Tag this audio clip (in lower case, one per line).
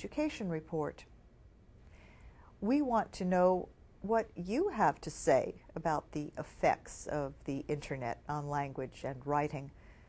speech